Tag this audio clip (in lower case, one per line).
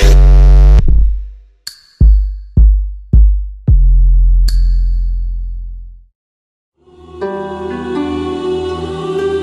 music